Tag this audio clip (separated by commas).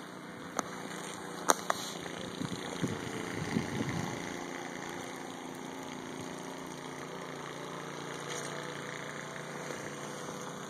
Vehicle